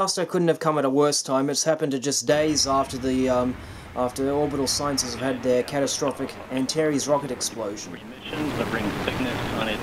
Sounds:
Speech, Explosion

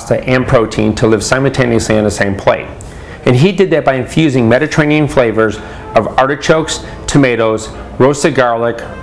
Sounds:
Music, Speech

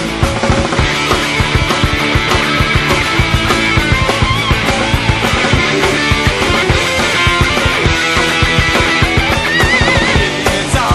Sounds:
Music

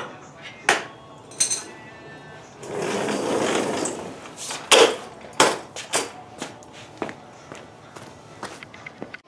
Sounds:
Wood

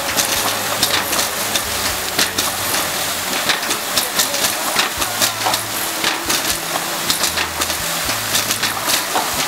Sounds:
Pump (liquid), Water

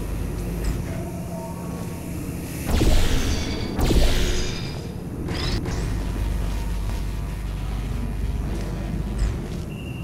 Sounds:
Music

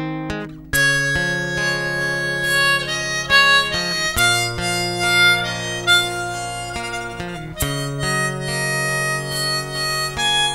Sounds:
playing harmonica

